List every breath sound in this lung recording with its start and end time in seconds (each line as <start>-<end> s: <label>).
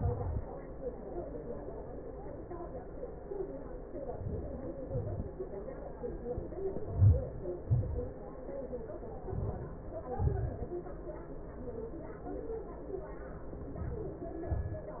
3.66-4.80 s: inhalation
4.80-5.77 s: exhalation
6.51-7.10 s: inhalation
7.13-7.72 s: exhalation
9.20-10.10 s: inhalation
10.11-10.51 s: exhalation